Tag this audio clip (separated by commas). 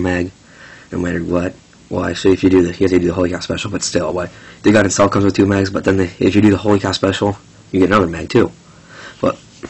Speech